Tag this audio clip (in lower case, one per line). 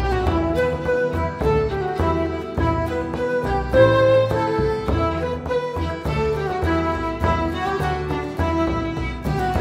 string section
fiddle
music
bowed string instrument